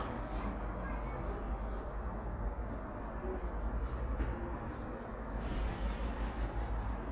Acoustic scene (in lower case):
residential area